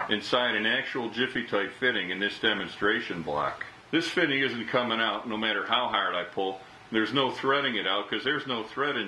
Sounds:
Speech

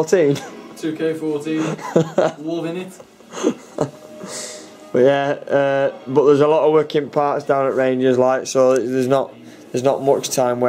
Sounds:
Music, inside a small room, Speech

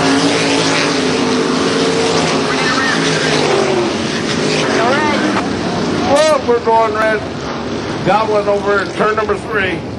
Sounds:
Vehicle, Speech, Car

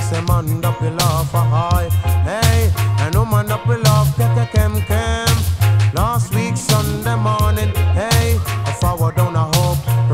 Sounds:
Music

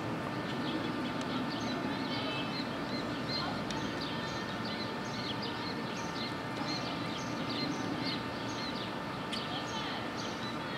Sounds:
zebra braying

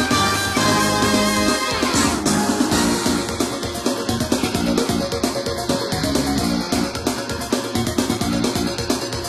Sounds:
Music, Soundtrack music

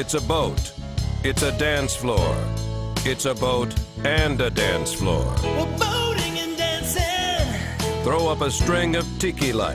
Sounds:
Music, Speech

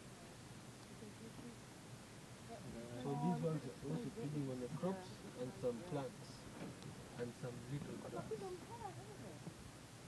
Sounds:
Speech

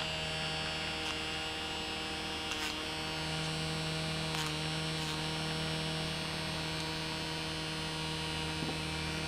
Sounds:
Hum, Mains hum

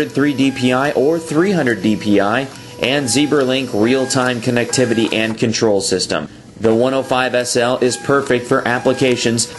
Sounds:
Music, Speech, Printer

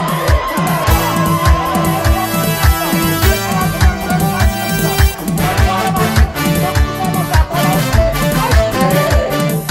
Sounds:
Music, Speech

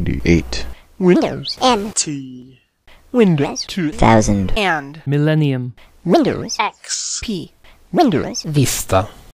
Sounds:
Speech synthesizer, Speech

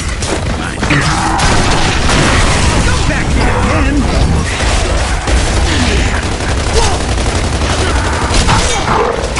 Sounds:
Speech

